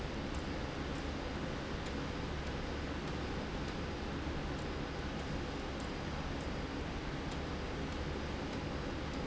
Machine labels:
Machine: slide rail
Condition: abnormal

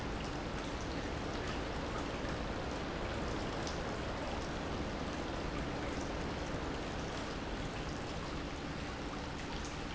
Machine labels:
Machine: pump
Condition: normal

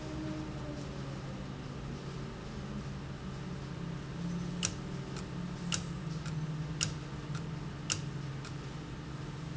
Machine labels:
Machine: valve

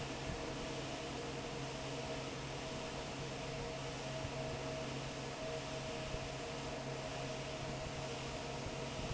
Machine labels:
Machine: fan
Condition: normal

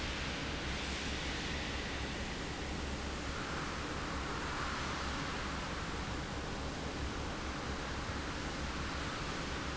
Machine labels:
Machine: fan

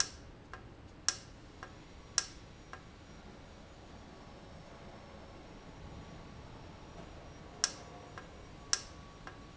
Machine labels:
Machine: valve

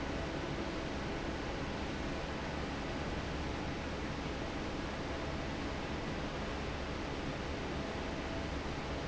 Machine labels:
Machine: fan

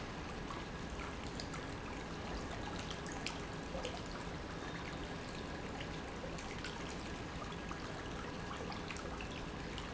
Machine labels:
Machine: pump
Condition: normal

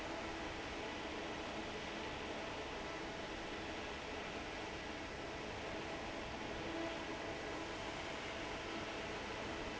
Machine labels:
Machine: fan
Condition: normal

